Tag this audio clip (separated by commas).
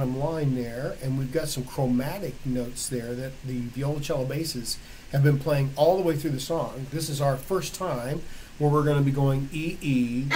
Speech